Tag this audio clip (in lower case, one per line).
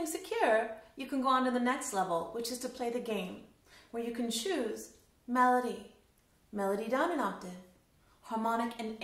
speech